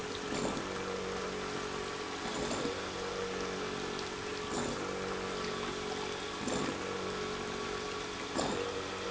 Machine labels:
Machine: pump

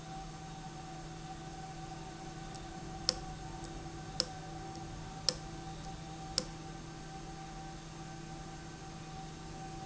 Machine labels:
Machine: valve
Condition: abnormal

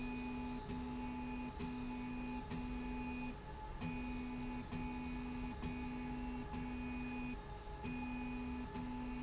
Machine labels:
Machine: slide rail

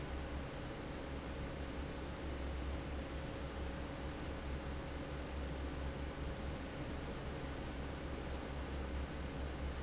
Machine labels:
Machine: fan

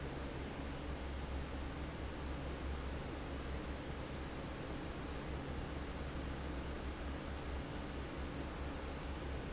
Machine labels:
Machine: fan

